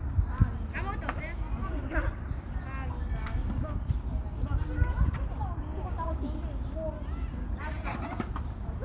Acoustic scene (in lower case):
park